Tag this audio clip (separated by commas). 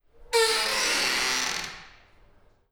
Squeak, Door, home sounds